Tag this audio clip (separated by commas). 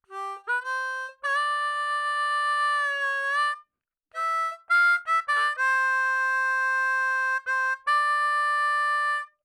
Harmonica, Music, Musical instrument